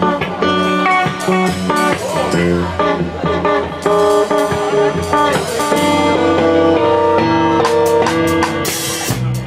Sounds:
funk
speech
music

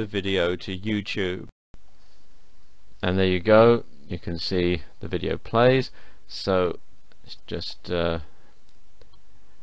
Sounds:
speech
inside a small room

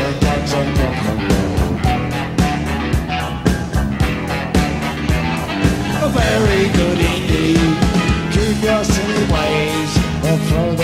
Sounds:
music
rock and roll
roll

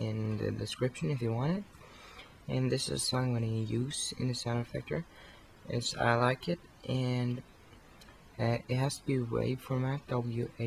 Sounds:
speech

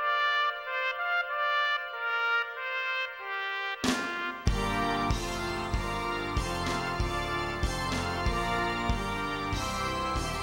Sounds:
music
inside a large room or hall
musical instrument

